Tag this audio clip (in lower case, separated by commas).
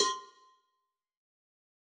bell, cowbell